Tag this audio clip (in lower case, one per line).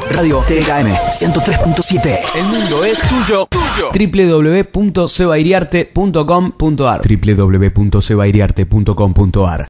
speech
music